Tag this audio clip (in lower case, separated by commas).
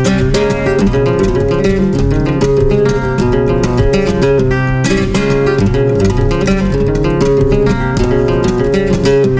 music, strum, musical instrument, plucked string instrument, guitar, acoustic guitar